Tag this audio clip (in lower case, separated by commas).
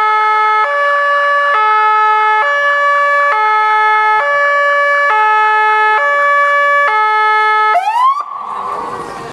vehicle, speech